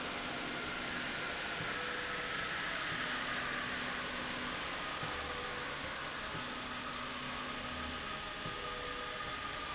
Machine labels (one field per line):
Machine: slide rail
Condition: normal